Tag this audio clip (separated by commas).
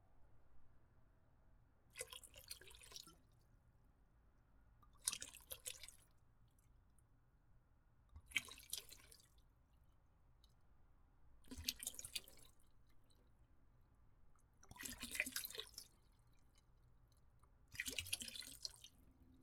Liquid